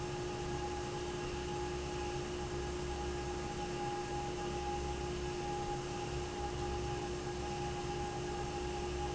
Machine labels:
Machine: fan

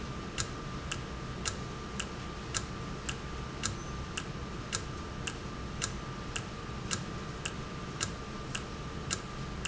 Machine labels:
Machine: valve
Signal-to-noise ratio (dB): -6 dB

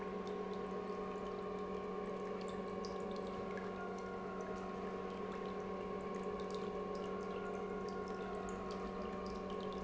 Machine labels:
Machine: pump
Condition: normal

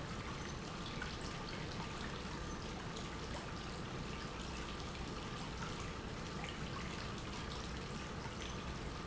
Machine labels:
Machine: pump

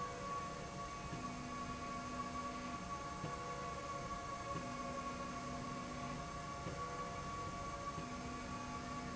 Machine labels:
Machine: slide rail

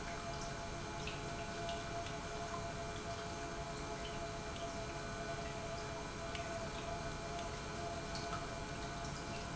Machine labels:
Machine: pump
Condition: normal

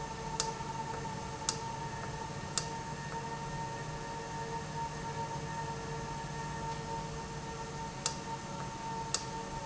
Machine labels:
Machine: valve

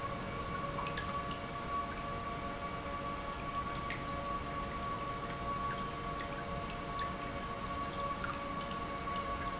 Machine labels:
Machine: pump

